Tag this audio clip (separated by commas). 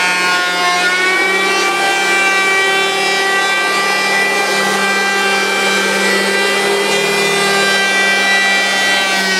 planing timber